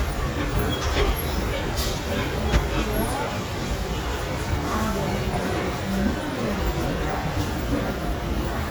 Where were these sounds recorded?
in a subway station